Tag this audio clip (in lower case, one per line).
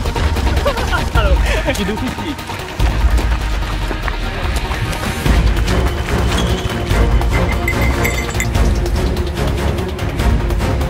speech
run
music